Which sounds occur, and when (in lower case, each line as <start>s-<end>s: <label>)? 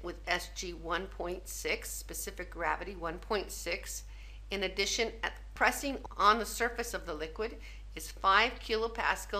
0.0s-4.1s: female speech
0.0s-9.3s: background noise
4.1s-4.5s: breathing
4.5s-5.4s: female speech
5.6s-7.6s: female speech
7.6s-7.9s: breathing
8.0s-9.3s: female speech